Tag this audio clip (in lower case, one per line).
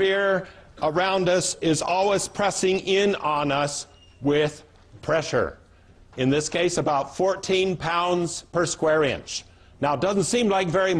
speech